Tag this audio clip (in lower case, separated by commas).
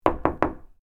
knock, door, domestic sounds